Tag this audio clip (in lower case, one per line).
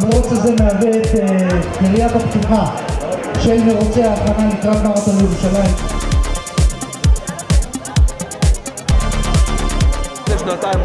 inside a large room or hall
crowd
music
speech